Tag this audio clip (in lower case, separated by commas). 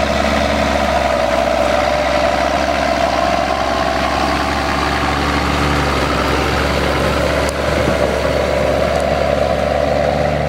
truck, vehicle, outside, rural or natural